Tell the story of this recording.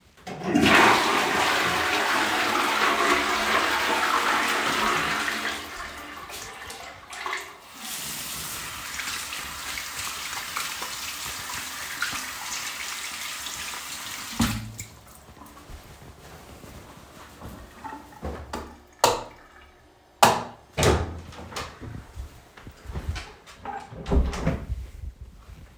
I flushed the toilet. Then I turned the water on to wash my hands. After stopping the water and quickly drying my hands I switched off the lights and opened the door. Walked out and closed them again.